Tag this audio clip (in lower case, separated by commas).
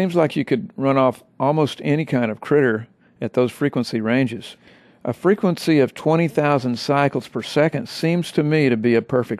speech